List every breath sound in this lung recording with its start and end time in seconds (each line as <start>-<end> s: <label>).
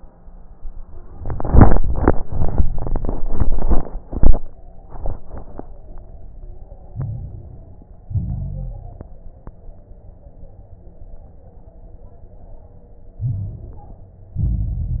6.90-8.00 s: inhalation
6.90-8.00 s: crackles
8.09-9.20 s: exhalation
8.09-9.20 s: crackles
13.17-14.27 s: inhalation
13.17-14.27 s: crackles
14.31-15.00 s: exhalation
14.31-15.00 s: crackles